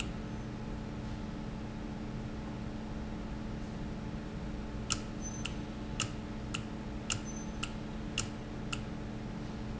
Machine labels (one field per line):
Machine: valve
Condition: normal